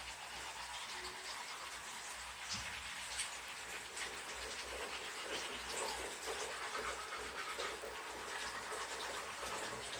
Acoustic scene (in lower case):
restroom